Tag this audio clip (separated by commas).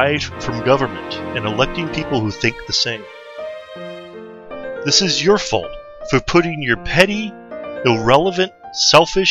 Narration